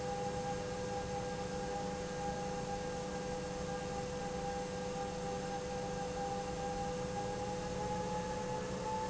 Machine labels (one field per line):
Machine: pump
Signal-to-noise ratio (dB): -6 dB